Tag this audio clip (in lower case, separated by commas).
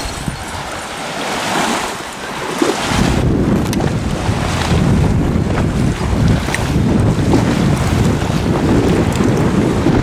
stream